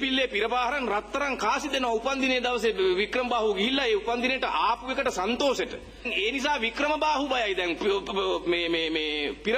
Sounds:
man speaking, monologue, speech

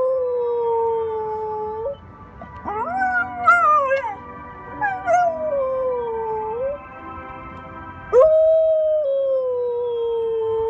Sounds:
dog howling

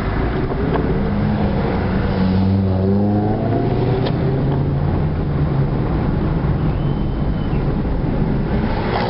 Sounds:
outside, urban or man-made, vehicle, car

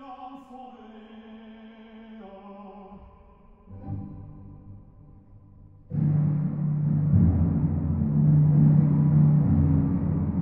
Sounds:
ambient music, music

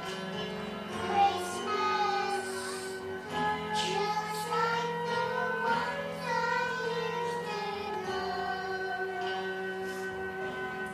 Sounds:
choir, music, inside a large room or hall

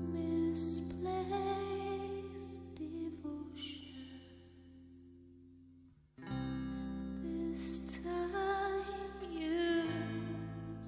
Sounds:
music

